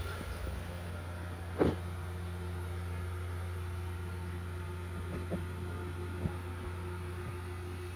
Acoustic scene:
restroom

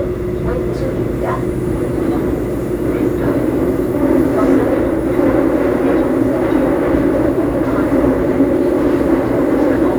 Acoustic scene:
subway train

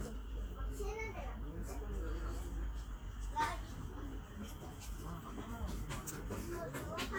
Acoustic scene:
park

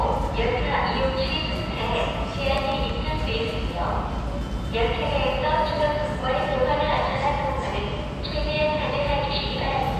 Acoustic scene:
subway station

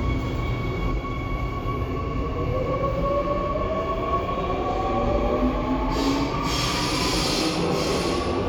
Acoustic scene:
subway station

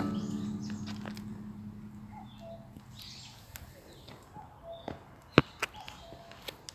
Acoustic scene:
park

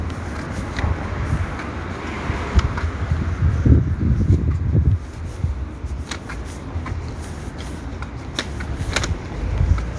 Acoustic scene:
street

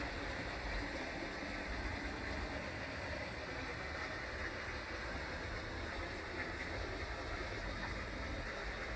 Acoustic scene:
park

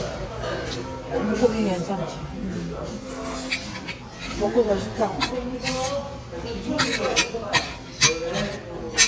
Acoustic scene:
restaurant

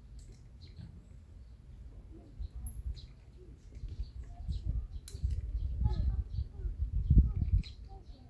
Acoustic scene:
park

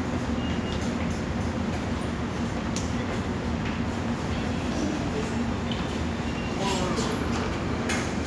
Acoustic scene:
subway station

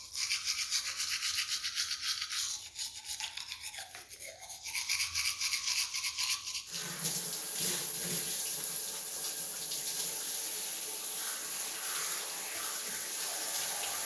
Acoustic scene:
restroom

